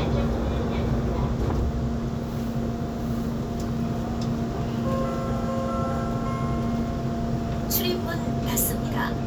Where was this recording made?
on a subway train